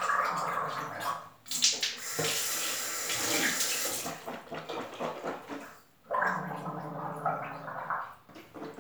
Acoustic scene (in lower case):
restroom